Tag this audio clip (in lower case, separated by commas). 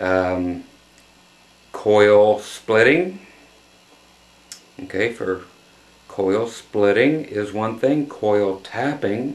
speech